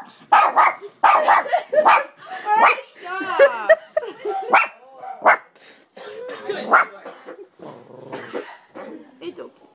A dog barks growls and people laugh and speak